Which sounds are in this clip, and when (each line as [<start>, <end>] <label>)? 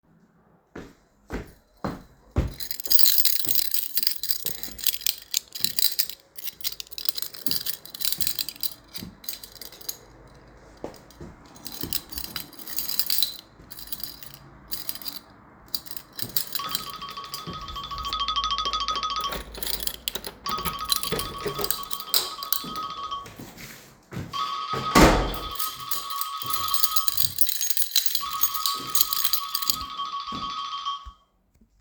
[0.59, 3.15] footsteps
[2.38, 17.06] keys
[10.62, 11.88] footsteps
[16.26, 31.81] phone ringing
[19.16, 23.09] door
[19.45, 23.12] keys
[24.64, 26.14] door
[25.68, 30.03] keys